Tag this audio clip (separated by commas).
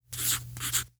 Domestic sounds, Writing